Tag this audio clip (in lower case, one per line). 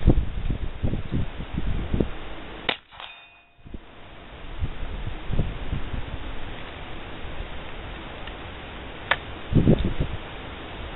outside, urban or man-made